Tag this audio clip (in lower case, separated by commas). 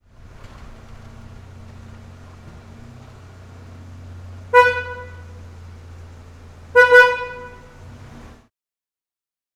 motor vehicle (road), alarm, vehicle, car, honking